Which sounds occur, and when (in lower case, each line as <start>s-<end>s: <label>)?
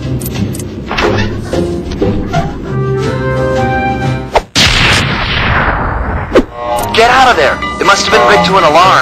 0.0s-4.4s: music
0.0s-9.0s: video game sound
0.2s-0.4s: generic impact sounds
0.5s-0.6s: generic impact sounds
0.9s-1.0s: generic impact sounds
4.3s-4.4s: swish
4.5s-6.3s: sound effect
6.3s-6.4s: swish
6.5s-9.0s: alarm
6.5s-9.0s: music
7.0s-7.5s: male speech
7.8s-9.0s: male speech